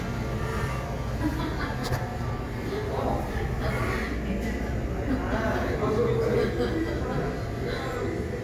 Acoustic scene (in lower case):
crowded indoor space